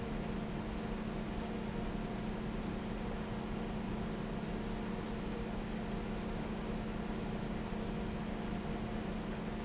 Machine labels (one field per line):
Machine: fan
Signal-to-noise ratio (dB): -6 dB